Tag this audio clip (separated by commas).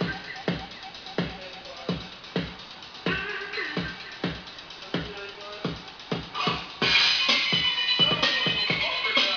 Music, inside a small room, Speech